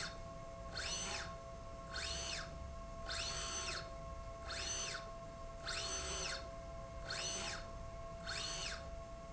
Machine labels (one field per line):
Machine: slide rail